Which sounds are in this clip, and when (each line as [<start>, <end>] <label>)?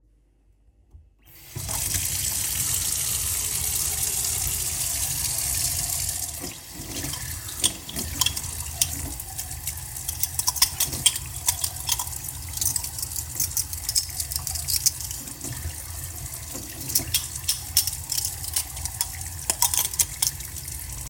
[1.26, 21.10] running water
[6.65, 21.10] cutlery and dishes